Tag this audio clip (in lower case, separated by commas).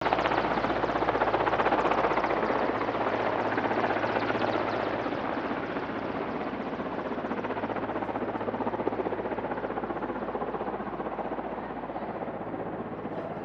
aircraft, vehicle